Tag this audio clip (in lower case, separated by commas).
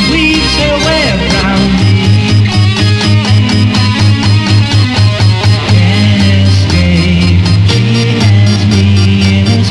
music, sampler